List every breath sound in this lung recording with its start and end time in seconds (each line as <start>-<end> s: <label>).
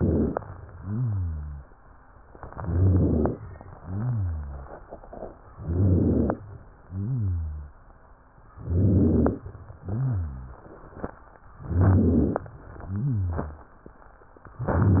0.71-1.66 s: exhalation
0.71-1.66 s: rhonchi
2.46-3.41 s: inhalation
2.46-3.41 s: rhonchi
3.77-4.72 s: exhalation
3.77-4.72 s: rhonchi
5.50-6.45 s: inhalation
5.50-6.45 s: rhonchi
6.79-7.76 s: exhalation
6.79-7.76 s: rhonchi
8.59-9.46 s: inhalation
8.59-9.46 s: rhonchi
9.76-10.64 s: exhalation
9.76-10.64 s: rhonchi
11.59-12.48 s: inhalation
11.59-12.48 s: rhonchi
12.84-13.73 s: exhalation
12.84-13.73 s: rhonchi
14.57-15.00 s: inhalation
14.57-15.00 s: rhonchi